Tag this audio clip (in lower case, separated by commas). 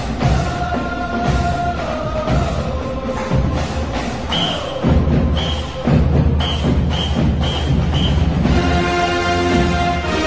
music